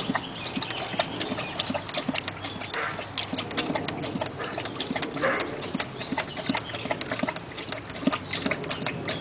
Clanking with dog barking in the background